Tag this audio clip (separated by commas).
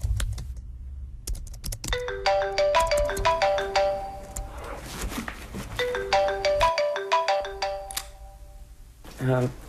Speech